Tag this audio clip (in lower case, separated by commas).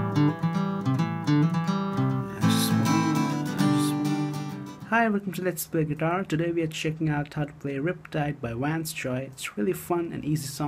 musical instrument, acoustic guitar, plucked string instrument, guitar